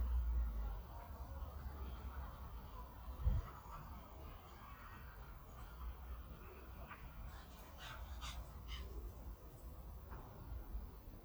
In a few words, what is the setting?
park